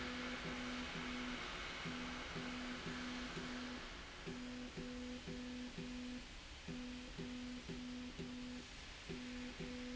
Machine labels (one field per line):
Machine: slide rail